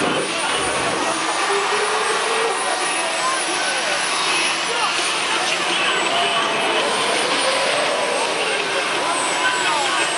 Vehicles are revving and going fast